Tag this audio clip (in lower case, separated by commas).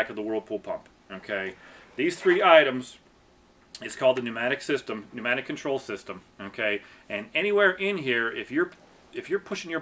speech